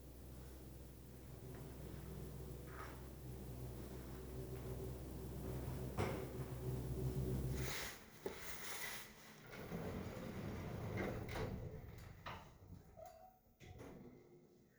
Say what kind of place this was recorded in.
elevator